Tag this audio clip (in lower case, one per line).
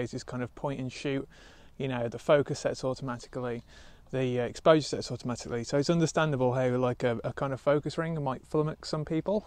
speech